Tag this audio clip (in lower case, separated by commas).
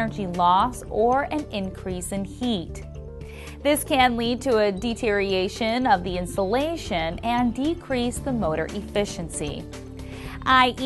music, speech